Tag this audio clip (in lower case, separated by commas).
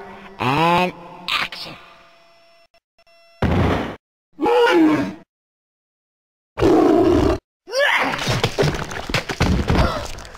speech, thump